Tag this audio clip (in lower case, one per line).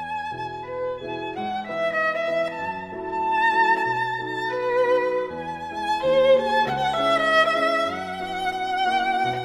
music
musical instrument
violin